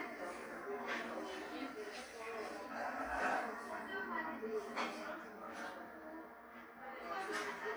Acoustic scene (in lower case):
cafe